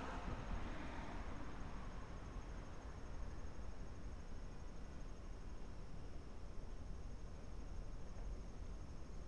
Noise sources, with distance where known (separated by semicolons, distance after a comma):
car horn, far